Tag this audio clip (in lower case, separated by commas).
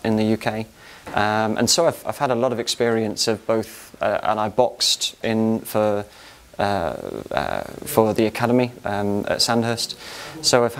speech